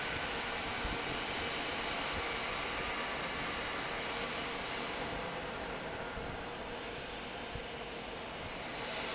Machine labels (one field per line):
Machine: fan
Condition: normal